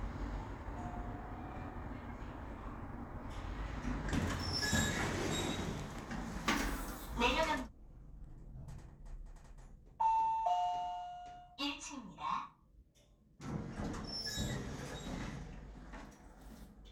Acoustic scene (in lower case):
elevator